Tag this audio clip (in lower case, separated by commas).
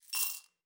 home sounds, coin (dropping), glass